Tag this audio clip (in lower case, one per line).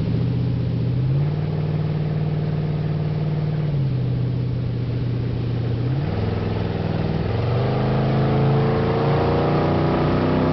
speedboat acceleration
motorboat
water vehicle
vehicle